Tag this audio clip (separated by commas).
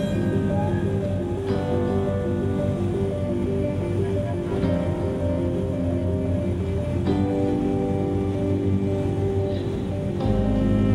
Music